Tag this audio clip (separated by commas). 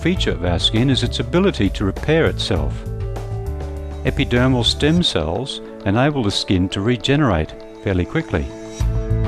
Music, Speech